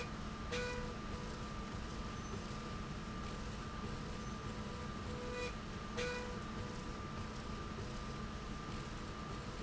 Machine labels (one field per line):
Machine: slide rail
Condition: normal